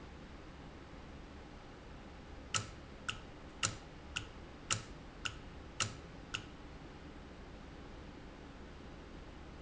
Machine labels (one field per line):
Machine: valve